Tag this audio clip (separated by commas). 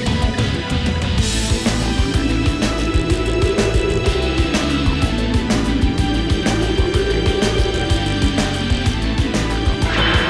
Music